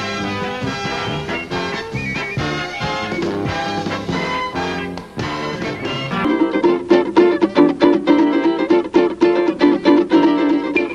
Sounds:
Ukulele, Music

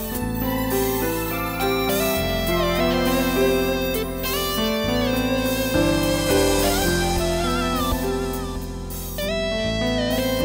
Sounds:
Music, Keyboard (musical), Piano, Musical instrument

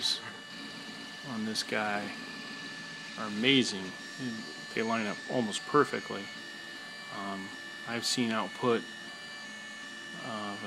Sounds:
Printer, Speech

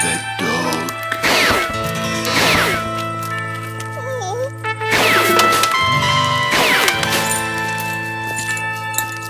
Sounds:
Music, Speech

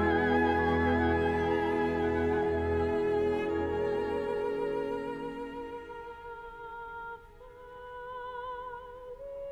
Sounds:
Violin, Bowed string instrument

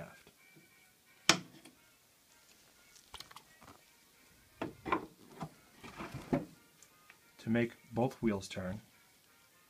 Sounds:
Speech

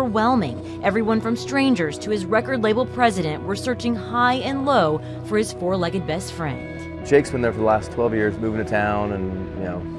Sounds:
Music, Speech

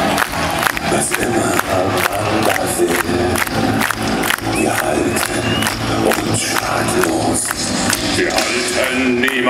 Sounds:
Music, Cheering, Singing

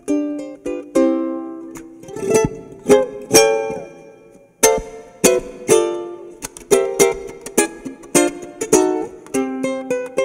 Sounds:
inside a small room, Music, Ukulele

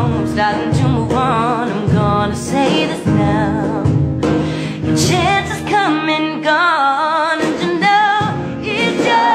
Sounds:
child singing

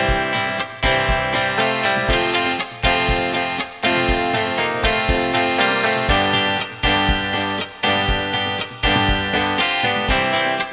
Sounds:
Music, Steel guitar

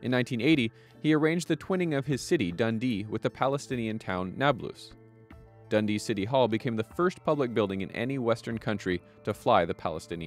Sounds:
Speech, monologue, man speaking

